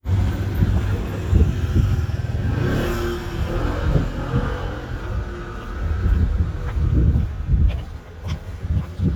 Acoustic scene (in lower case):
street